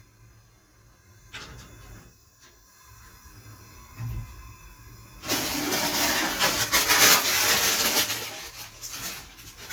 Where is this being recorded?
in a kitchen